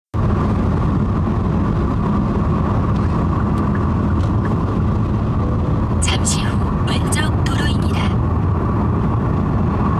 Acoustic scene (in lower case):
car